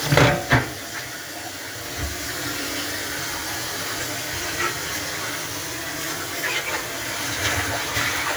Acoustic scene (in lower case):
kitchen